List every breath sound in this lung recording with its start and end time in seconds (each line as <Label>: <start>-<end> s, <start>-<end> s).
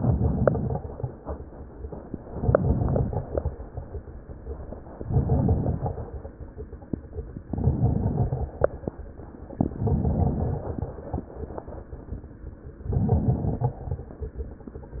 Inhalation: 0.00-0.84 s, 2.31-3.30 s, 4.97-6.07 s, 7.47-8.58 s, 9.66-10.91 s, 12.88-14.14 s
Crackles: 0.00-0.84 s, 2.31-3.30 s, 4.97-6.07 s, 7.47-8.58 s, 9.66-10.91 s, 12.88-14.14 s